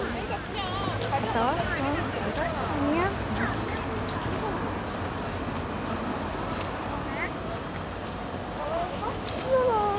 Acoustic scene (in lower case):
residential area